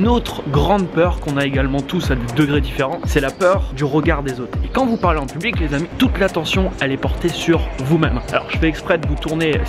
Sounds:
Music, Speech

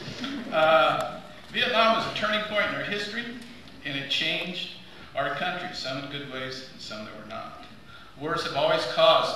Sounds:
Narration, Speech, Male speech

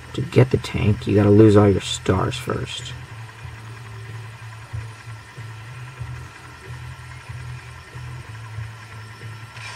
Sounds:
Speech

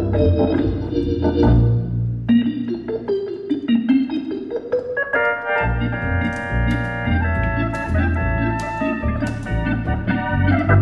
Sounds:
Organ, Hammond organ

